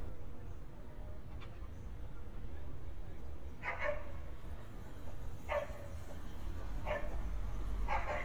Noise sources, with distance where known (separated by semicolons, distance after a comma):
dog barking or whining, near